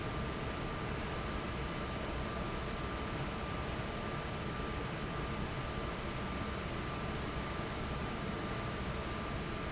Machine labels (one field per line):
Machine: fan